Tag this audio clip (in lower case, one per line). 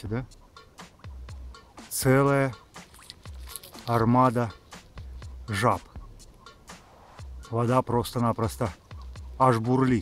speech
outside, rural or natural
music